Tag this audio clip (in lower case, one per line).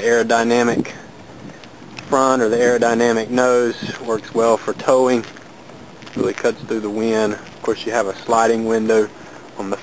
speech